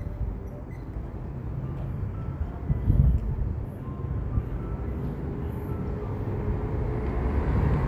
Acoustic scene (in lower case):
street